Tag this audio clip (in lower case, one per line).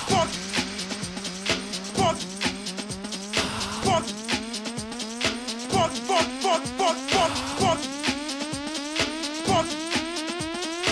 music